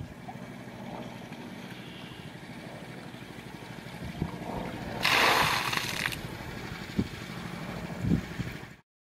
Water is trickling then it sloshes down to the ground